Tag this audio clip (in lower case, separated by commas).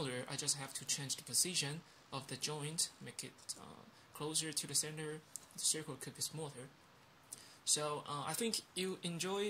speech